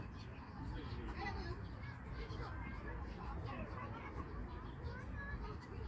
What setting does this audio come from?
park